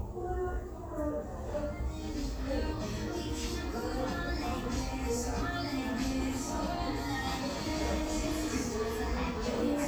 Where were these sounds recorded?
in a crowded indoor space